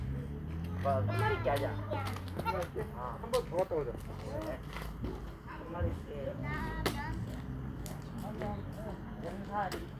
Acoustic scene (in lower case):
park